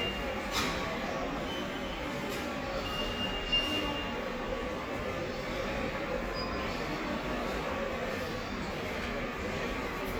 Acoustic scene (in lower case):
subway station